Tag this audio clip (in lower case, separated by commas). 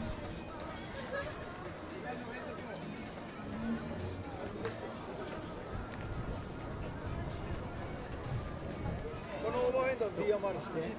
music, speech